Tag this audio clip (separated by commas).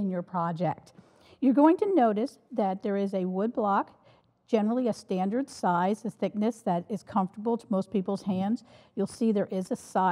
Speech